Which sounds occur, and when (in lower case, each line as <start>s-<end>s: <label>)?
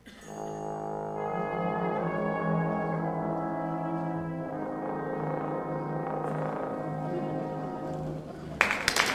0.0s-8.6s: music
0.4s-0.6s: cough
8.5s-9.0s: clapping
8.6s-9.1s: cheering